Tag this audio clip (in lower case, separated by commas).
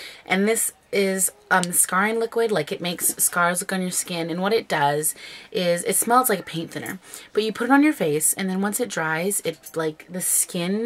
speech